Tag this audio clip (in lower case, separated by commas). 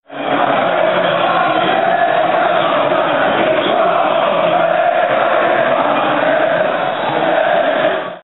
human group actions, crowd